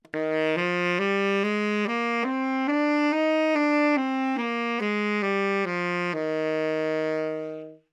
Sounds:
music
musical instrument
wind instrument

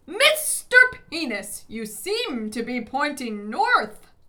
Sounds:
human voice
yell
shout

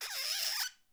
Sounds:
squeak

